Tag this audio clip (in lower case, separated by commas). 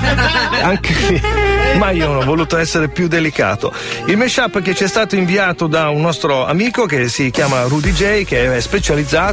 speech, music